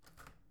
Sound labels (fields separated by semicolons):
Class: window; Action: opening